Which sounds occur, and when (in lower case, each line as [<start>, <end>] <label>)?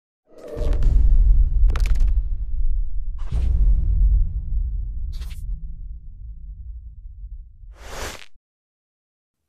[0.17, 8.35] sound effect